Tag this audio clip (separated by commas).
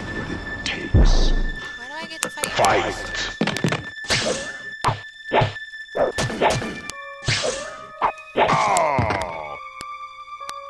Speech, Music